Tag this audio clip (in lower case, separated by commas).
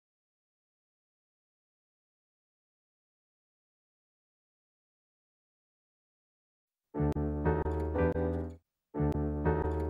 inside a small room, music, silence